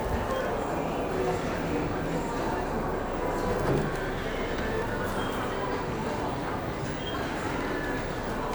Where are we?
in a cafe